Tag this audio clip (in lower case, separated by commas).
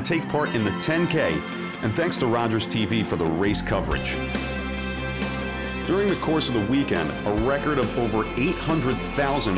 outside, urban or man-made, speech, music